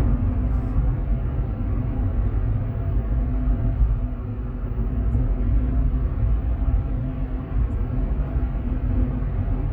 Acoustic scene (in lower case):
car